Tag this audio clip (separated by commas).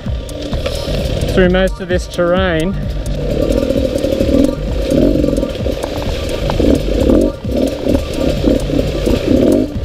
Music, Speech